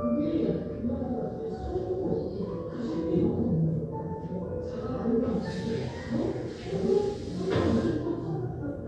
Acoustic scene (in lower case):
crowded indoor space